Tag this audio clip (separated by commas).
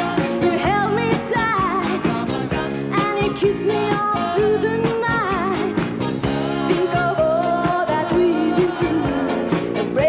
Music